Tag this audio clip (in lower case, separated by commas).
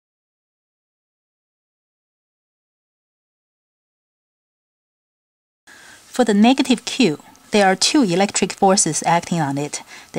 speech